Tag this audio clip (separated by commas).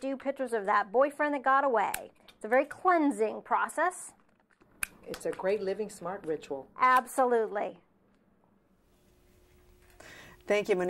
Speech, inside a small room